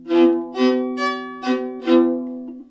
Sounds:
music
musical instrument
bowed string instrument

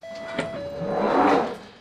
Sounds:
rail transport
metro
vehicle

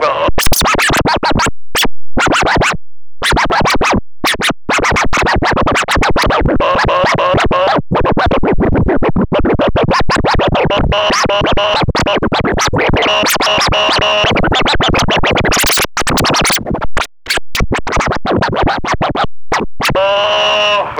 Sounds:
scratching (performance technique)
musical instrument
music

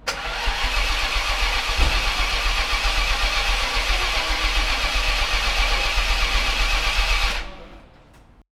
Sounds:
engine

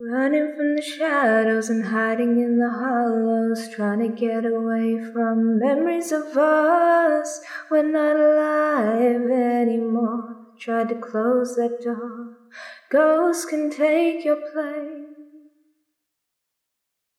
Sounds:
human voice
singing
female singing

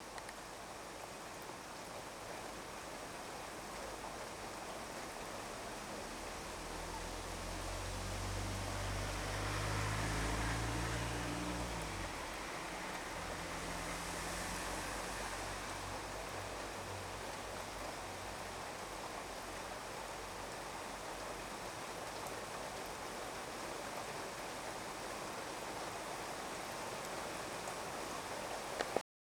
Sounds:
water
rain

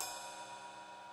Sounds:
music
crash cymbal
musical instrument
percussion
cymbal

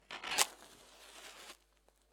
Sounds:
fire

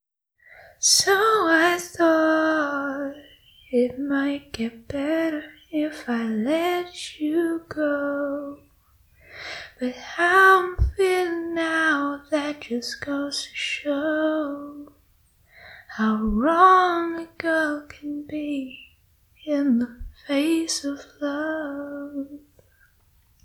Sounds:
human voice
female singing
singing

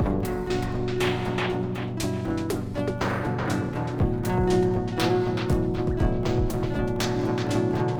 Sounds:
keyboard (musical)
musical instrument
music

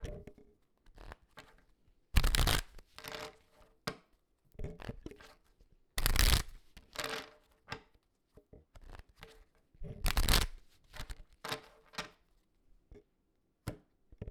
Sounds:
domestic sounds

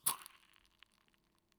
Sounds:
fire

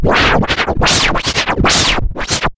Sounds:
scratching (performance technique)
music
musical instrument

